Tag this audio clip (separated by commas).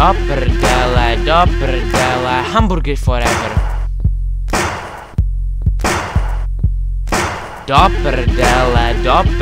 Music